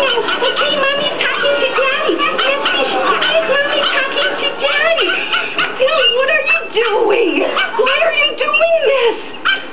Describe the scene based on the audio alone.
A woman is talking and a dog is barking